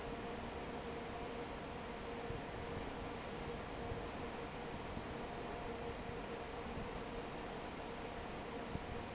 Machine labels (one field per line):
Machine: fan